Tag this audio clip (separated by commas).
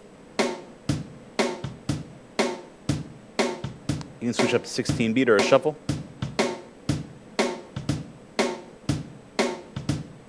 Percussion, Bass drum, Drum, Rimshot, Snare drum